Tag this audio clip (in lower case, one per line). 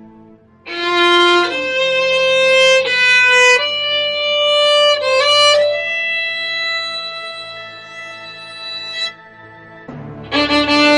bowed string instrument
violin